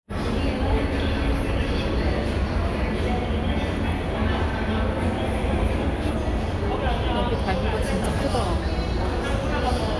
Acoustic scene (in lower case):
crowded indoor space